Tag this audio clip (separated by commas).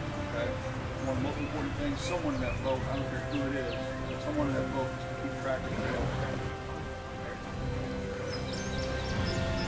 Speech, Music